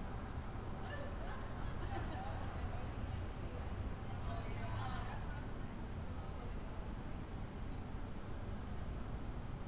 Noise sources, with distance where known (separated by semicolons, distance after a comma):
person or small group talking, near